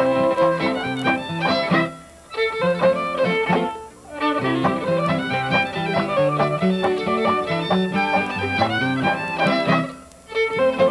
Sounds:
Violin, Musical instrument, Music

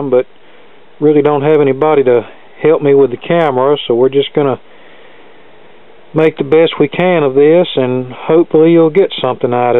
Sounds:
Speech

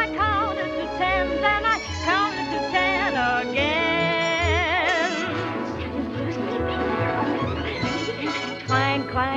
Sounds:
Music

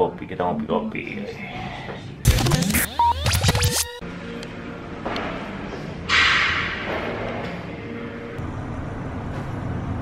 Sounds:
Speech, Music

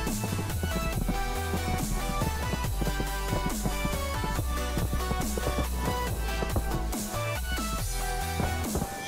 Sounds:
lighting firecrackers

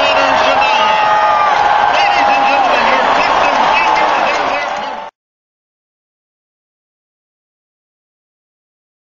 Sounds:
Speech

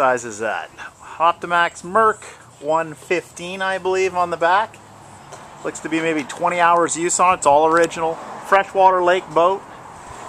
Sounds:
Speech

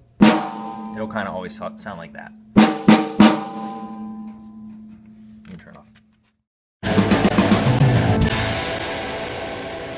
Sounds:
playing snare drum

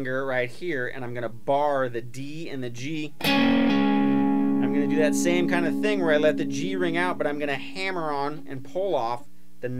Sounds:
Speech, Guitar, Musical instrument, Music, Electric guitar, Plucked string instrument

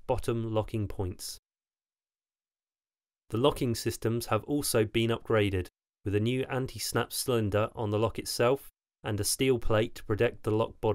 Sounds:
Speech

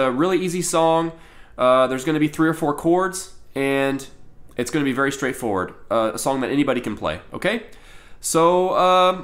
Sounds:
Speech

